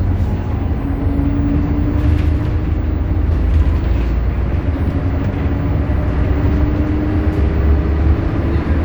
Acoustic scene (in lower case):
bus